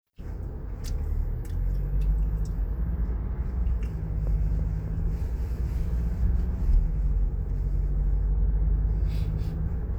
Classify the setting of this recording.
car